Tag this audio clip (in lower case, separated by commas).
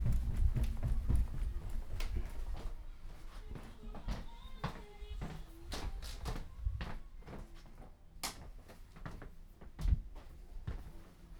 run